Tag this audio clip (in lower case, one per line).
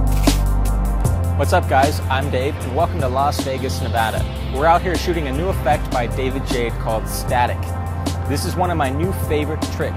music
speech